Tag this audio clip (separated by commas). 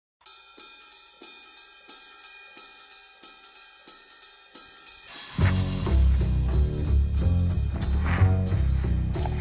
Music